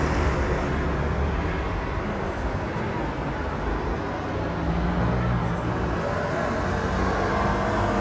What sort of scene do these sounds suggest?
street